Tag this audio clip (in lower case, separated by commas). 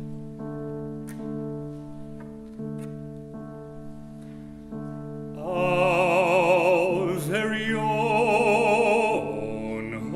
musical instrument, music, opera